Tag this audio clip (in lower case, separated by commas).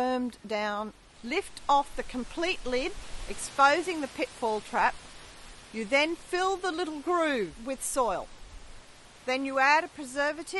speech